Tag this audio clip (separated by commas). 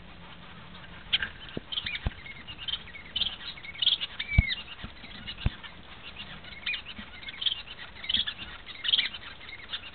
Bird, pets